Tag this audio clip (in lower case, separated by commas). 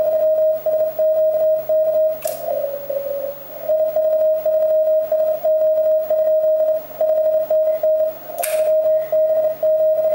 radio